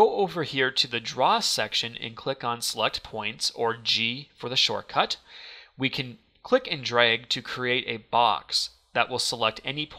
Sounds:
Speech

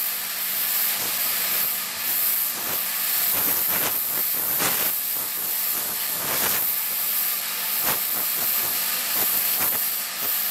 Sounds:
inside a small room

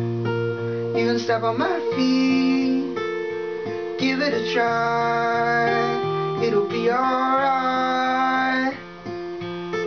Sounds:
Music

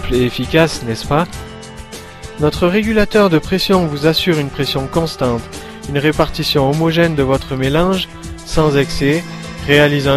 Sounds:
Speech, Music

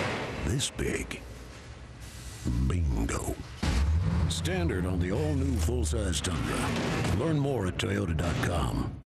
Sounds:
Speech

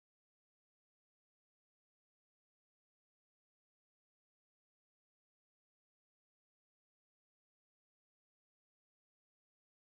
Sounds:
Silence

